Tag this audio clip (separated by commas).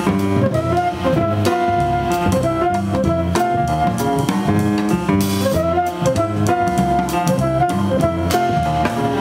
Music